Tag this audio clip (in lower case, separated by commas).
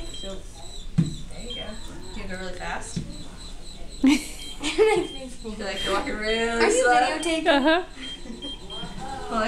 speech